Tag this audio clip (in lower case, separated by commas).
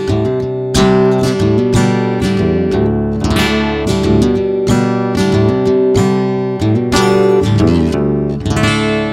music